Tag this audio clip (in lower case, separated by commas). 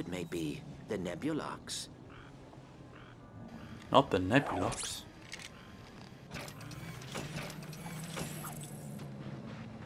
mechanisms